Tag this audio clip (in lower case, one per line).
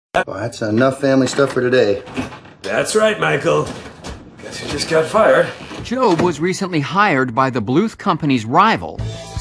speech
music